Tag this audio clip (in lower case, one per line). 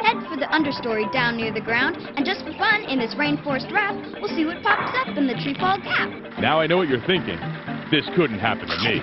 speech
music